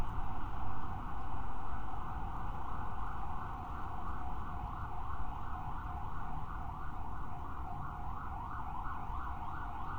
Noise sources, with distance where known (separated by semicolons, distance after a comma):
siren, far